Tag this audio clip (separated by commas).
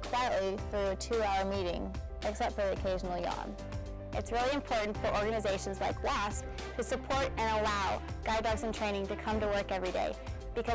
Speech, Music